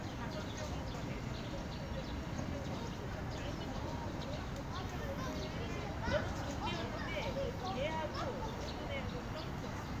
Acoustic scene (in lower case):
park